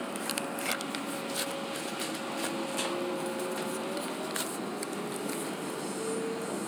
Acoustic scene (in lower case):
subway train